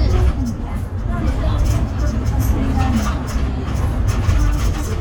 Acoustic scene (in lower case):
bus